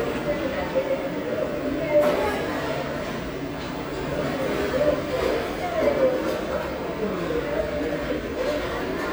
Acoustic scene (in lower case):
restaurant